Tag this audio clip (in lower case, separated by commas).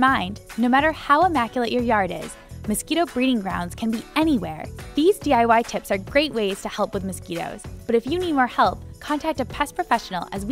speech, music